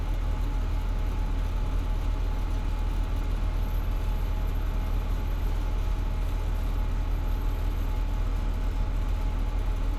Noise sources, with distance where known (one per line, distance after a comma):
engine of unclear size, near